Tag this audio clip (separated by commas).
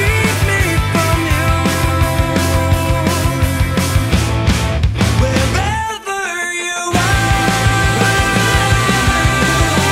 Music